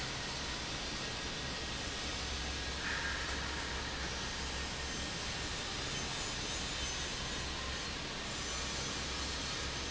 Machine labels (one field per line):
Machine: fan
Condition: normal